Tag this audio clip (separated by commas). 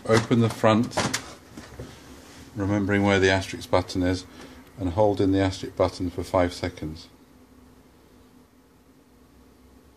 Speech